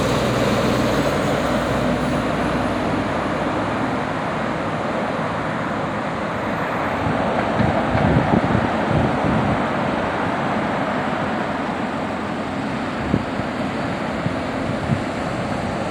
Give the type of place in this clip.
street